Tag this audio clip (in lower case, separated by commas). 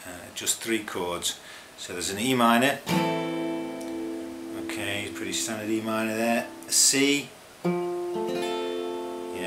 plucked string instrument, strum, music, guitar, speech, musical instrument